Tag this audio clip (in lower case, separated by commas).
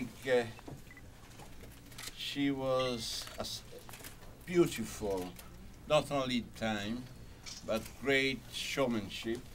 speech